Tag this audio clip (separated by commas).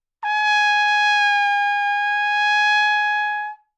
Brass instrument, Trumpet, Music, Musical instrument